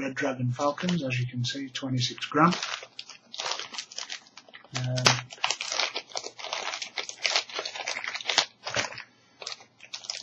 A man speaks followed by sound of package opening